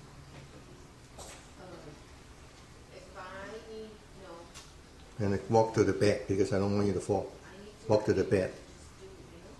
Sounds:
man speaking, speech, female speech, conversation

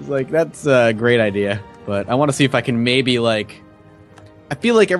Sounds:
speech, music

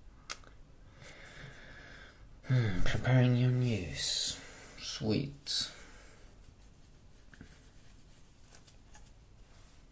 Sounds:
inside a small room, speech

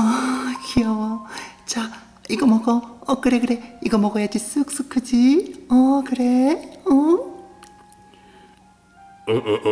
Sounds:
speech

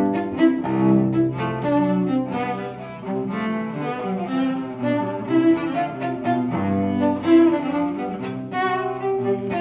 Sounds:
music, bowed string instrument, musical instrument, cello

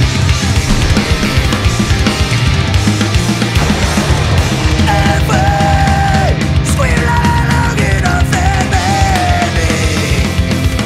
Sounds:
music

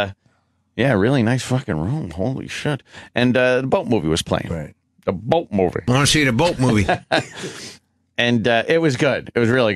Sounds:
speech

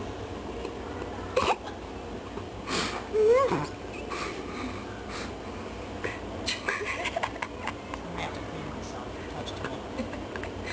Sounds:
speech

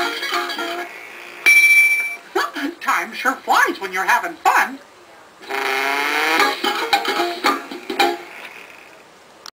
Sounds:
speech, music

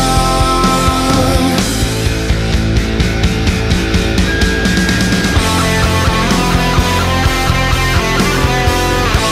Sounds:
grunge

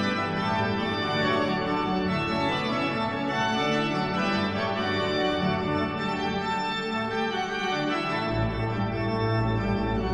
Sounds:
keyboard (musical), musical instrument, organ, music, hammond organ

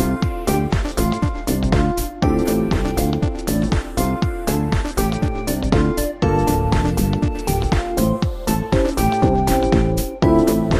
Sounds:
music

